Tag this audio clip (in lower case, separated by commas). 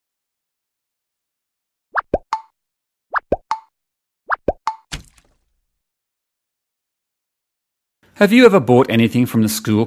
plop, speech